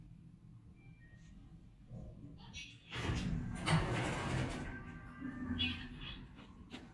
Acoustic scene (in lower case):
elevator